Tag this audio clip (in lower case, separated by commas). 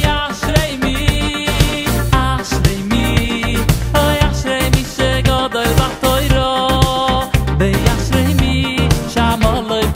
funny music, soundtrack music, music, independent music